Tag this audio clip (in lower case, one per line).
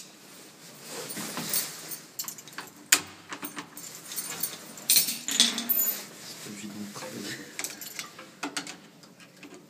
speech
keys jangling